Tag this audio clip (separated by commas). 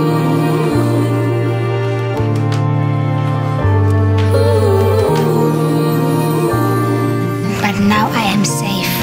Speech, Music